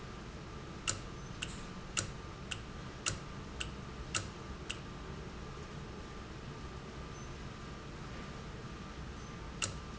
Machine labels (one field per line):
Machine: valve